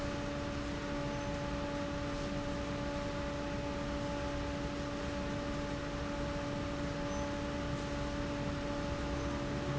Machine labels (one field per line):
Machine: fan